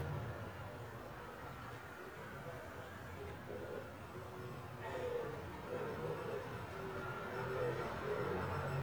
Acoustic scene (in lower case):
residential area